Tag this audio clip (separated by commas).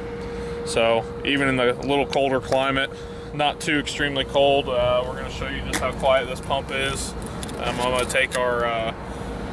Motor vehicle (road), Speech, Vehicle